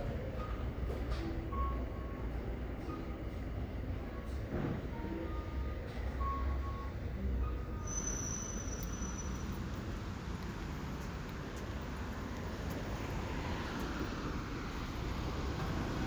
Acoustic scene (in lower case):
residential area